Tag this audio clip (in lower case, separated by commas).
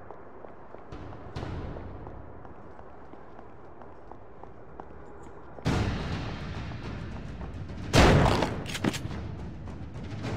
fusillade